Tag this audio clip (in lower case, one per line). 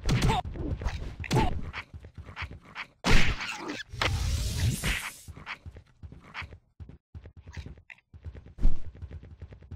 outside, rural or natural